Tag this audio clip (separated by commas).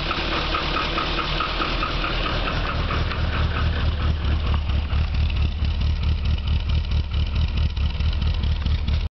Medium engine (mid frequency), Engine, Idling, Vehicle, Car